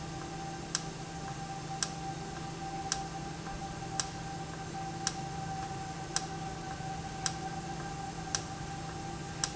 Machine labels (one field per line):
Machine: valve